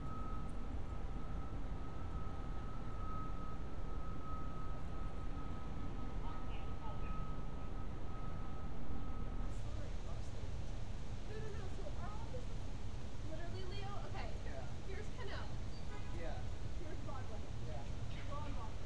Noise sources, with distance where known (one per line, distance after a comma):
person or small group talking